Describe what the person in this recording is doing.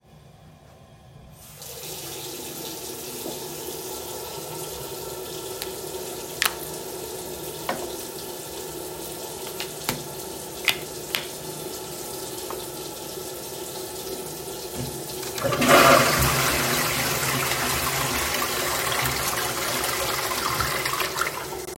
I turned on the water, opened and closed two moisturizers, and while the water was still running, I flushed the toilet